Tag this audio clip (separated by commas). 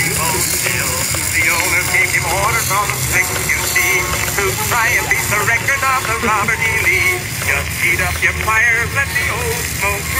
Motorboat, Music, Vehicle